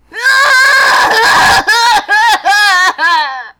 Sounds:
crying, human voice

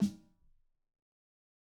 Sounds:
musical instrument, percussion, drum, snare drum, music

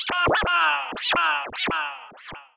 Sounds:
musical instrument, scratching (performance technique), music

